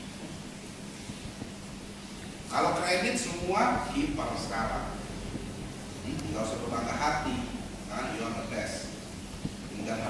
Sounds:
speech
narration
male speech

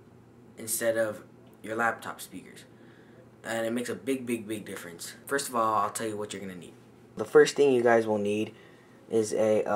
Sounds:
speech

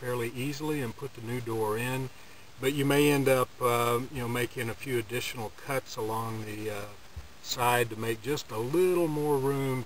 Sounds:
speech

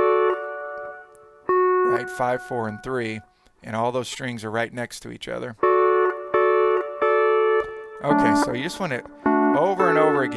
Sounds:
slide guitar
musical instrument
speech
plucked string instrument
music

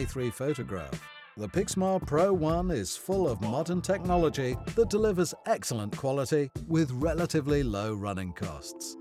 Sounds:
speech
music

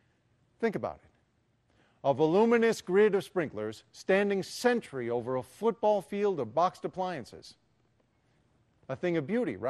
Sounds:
speech

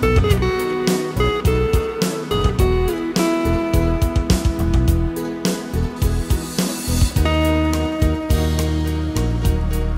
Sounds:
plucked string instrument
music
musical instrument

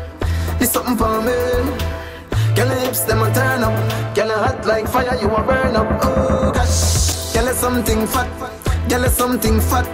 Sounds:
music

